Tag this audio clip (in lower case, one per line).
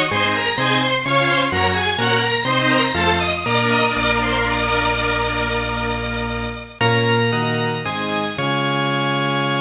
music